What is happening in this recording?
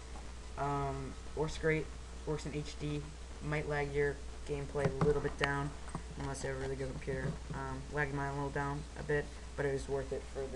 Man speaking